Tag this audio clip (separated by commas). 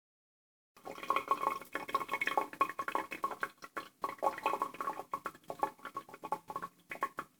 Sink (filling or washing), home sounds, Water